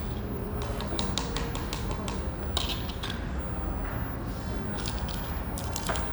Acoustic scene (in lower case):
cafe